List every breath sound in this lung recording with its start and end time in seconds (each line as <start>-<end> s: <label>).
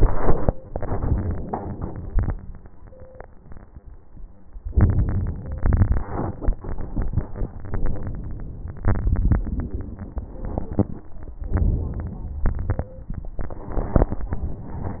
0.00-0.50 s: inhalation
0.00-0.50 s: crackles
0.66-2.30 s: crackles
0.67-2.32 s: exhalation
4.73-5.60 s: inhalation
4.73-5.60 s: crackles
5.64-8.83 s: exhalation
8.85-10.46 s: inhalation
10.48-11.42 s: exhalation
11.55-12.45 s: inhalation
12.48-13.38 s: exhalation
13.46-14.22 s: inhalation
13.46-14.22 s: crackles
14.22-15.00 s: exhalation